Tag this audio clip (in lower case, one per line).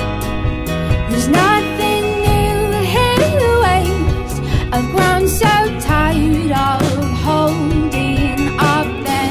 music